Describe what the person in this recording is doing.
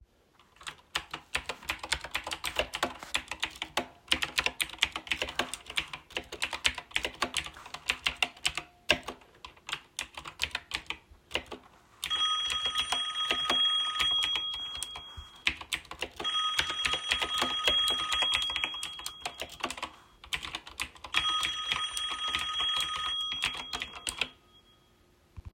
I started typing on the keyboard and, while I was still typing, the phone started ringing. I continued typing while the phone rang.